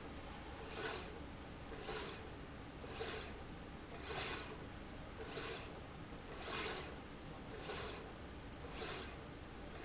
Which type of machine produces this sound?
slide rail